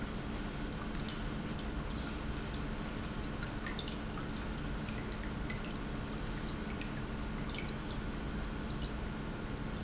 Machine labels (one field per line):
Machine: pump